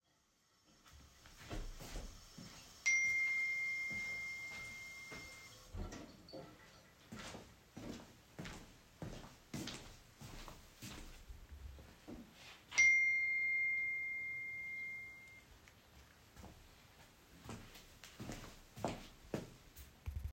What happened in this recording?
Water is running in the background. Then I get a notification on my phone. I stop the water and start walking towards my phone. Afterwards, I get a second notification and take some steps again.